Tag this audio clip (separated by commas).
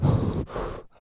Respiratory sounds, Breathing